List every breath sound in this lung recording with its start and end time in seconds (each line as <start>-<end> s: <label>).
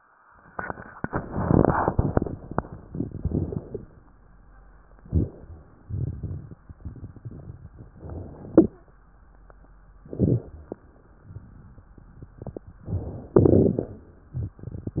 2.98-3.81 s: inhalation
2.98-3.81 s: crackles
5.02-5.85 s: inhalation
5.02-5.85 s: crackles
5.91-7.94 s: exhalation
5.91-7.94 s: crackles
7.97-8.80 s: inhalation
7.97-8.80 s: crackles
10.03-10.87 s: inhalation
10.03-10.87 s: crackles
12.78-13.33 s: inhalation
13.34-14.60 s: exhalation
13.34-14.60 s: crackles